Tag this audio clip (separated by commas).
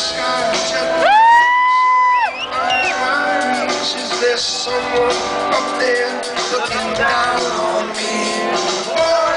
Guitar, Plucked string instrument, Musical instrument, Music, Crowd, Cheering